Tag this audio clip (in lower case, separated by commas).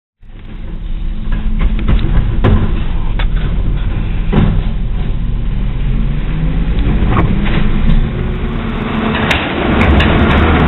truck, outside, urban or man-made, motor vehicle (road), vehicle